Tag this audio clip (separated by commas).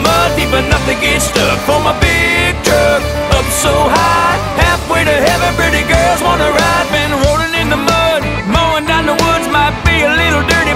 Music